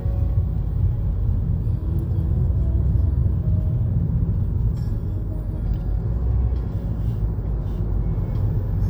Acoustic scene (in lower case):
car